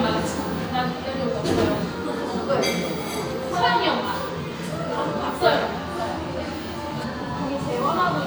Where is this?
in a crowded indoor space